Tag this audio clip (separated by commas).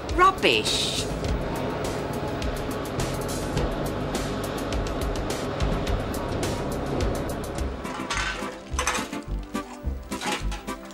Speech, Music